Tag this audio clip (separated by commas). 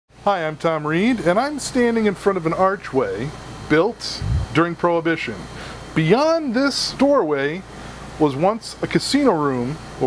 inside a small room, Speech